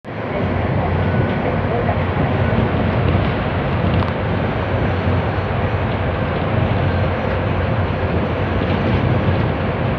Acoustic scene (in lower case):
bus